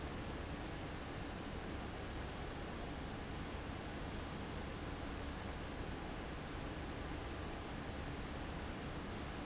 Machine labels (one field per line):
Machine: fan